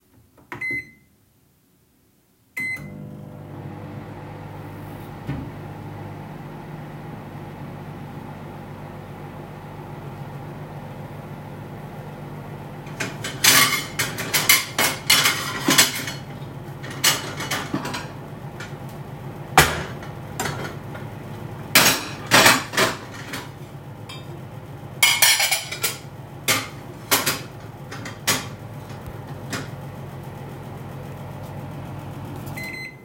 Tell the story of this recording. I started the microwave after a short time I prepared the table with plates.